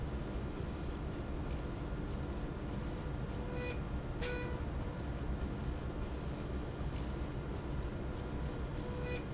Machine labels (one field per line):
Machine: slide rail